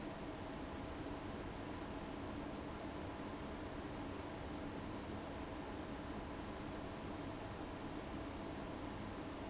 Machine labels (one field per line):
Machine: fan